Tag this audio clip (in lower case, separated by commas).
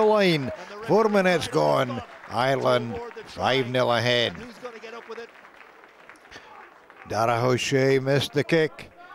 television, speech